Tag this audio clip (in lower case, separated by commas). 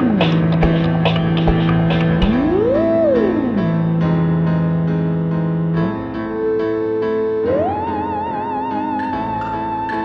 music, video game music